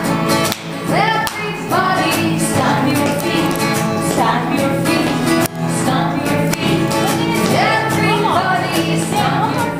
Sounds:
Speech, Music

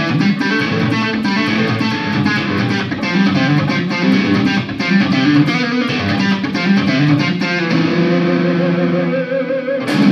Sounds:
Music, Musical instrument, Strum, Guitar, Plucked string instrument, Bass guitar, Electric guitar

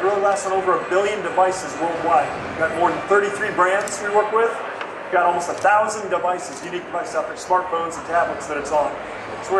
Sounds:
Speech, Music

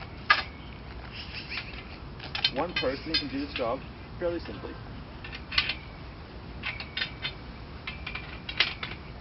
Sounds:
Speech

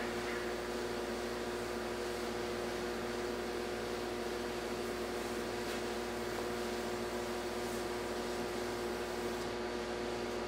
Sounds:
Spray

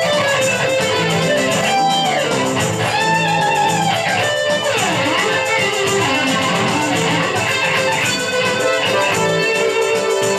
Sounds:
Guitar, Electric guitar, Musical instrument, Music, Plucked string instrument

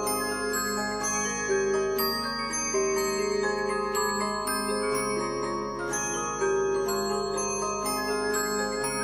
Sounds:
Mallet percussion, Glockenspiel, Marimba

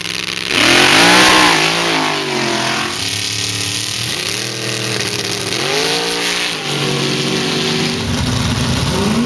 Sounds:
Vehicle, Truck

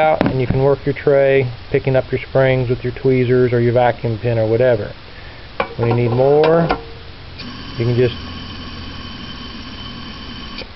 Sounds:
inside a small room, Speech

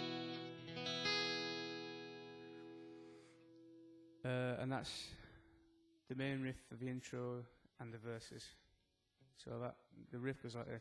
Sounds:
Music, Speech

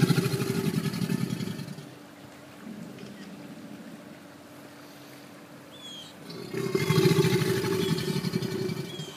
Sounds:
alligators

